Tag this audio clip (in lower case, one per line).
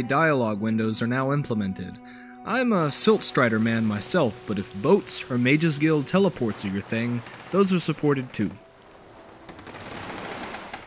speech